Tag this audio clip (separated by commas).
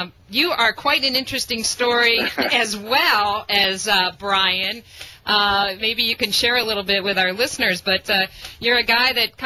Speech